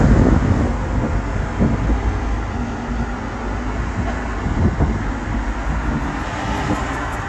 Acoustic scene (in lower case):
street